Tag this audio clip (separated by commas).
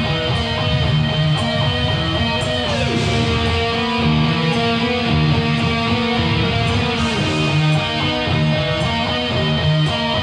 Music, Heavy metal